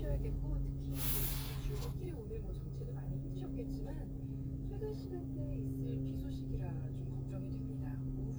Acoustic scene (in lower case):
car